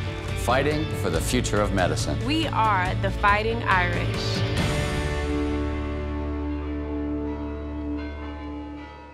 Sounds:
bell

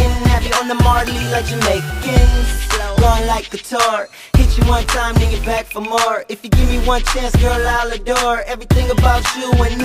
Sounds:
music, hip hop music

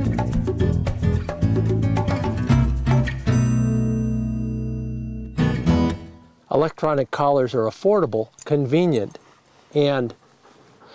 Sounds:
music, speech

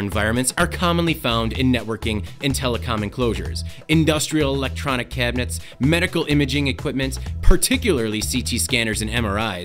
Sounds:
speech, music

